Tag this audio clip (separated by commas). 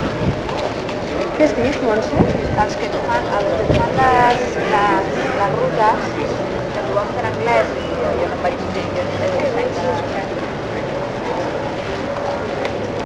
Conversation, Human voice, Speech